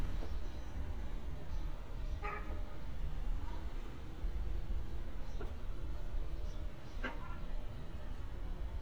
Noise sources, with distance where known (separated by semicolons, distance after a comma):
background noise